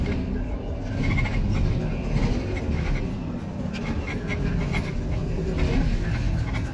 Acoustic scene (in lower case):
bus